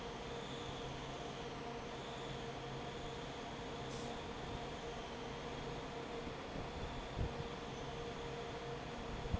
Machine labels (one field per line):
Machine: fan